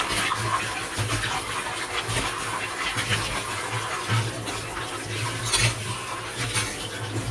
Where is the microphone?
in a kitchen